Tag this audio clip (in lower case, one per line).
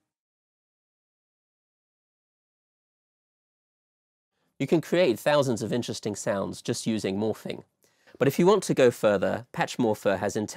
speech